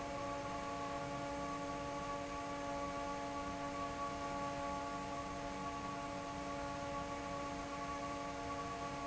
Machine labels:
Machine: fan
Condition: normal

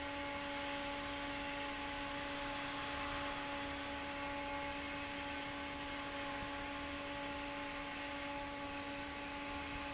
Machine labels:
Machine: fan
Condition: normal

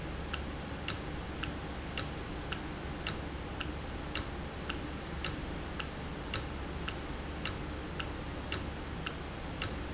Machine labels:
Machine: valve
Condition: normal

